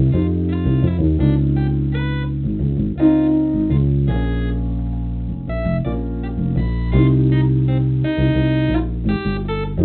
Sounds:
playing hammond organ, hammond organ, organ

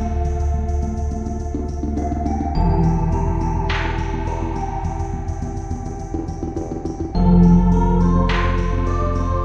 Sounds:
music, country

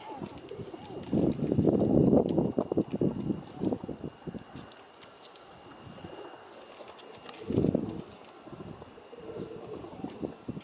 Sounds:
dove, bird

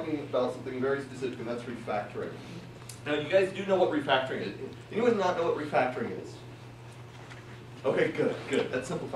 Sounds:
speech

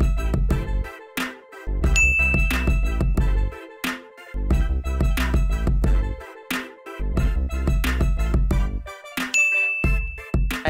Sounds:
music

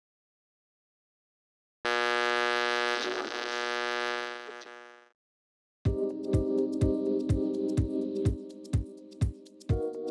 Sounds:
music

